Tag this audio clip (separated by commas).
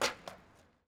Vehicle, Skateboard